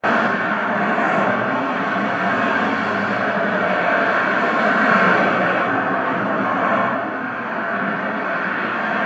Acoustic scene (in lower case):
street